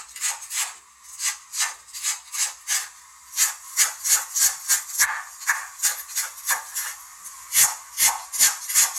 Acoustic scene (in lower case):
kitchen